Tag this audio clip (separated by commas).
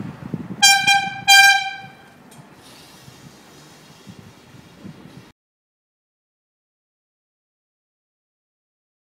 Vehicle, Bicycle